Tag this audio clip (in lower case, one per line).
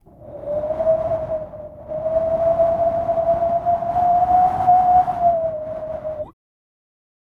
wind